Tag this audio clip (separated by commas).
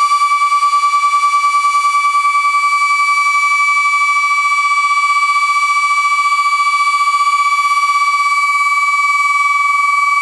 Civil defense siren, Siren